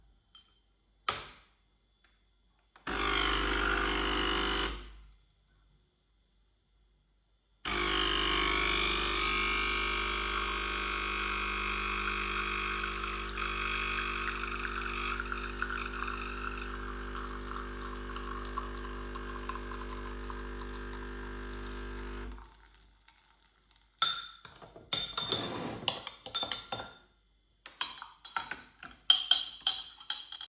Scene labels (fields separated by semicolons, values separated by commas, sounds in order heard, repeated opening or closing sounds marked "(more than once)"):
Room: kitchen; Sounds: coffee machine, cutlery and dishes